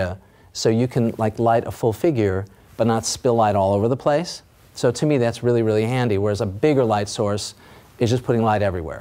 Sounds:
speech

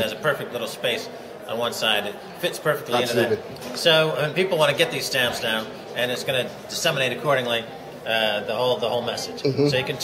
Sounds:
speech

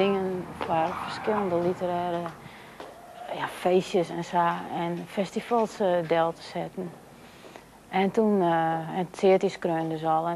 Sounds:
outside, urban or man-made
speech

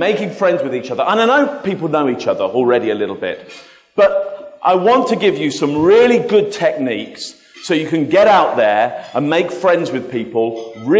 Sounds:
man speaking
speech
monologue

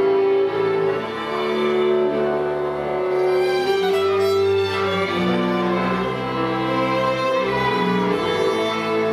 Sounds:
cello
violin
double bass
bowed string instrument
playing cello

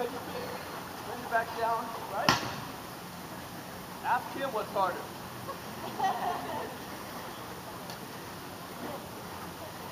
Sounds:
speech

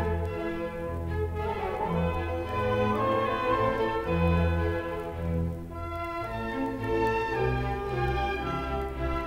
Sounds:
orchestra
music
fiddle
musical instrument

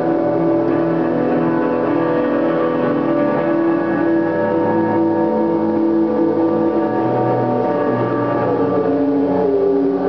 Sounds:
music

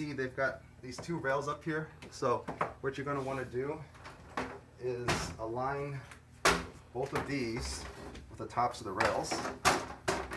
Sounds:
opening or closing drawers

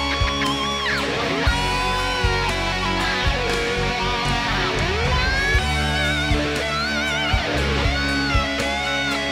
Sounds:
musical instrument
plucked string instrument
music
strum

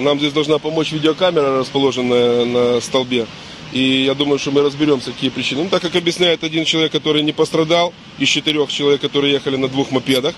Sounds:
speech
car passing by

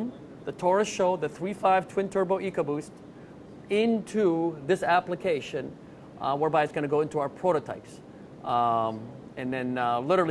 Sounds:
speech

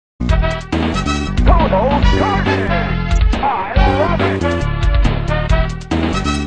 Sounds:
music
speech

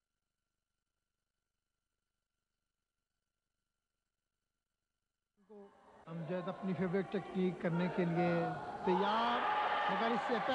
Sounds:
speech

